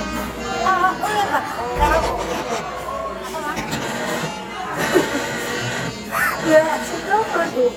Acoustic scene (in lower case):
cafe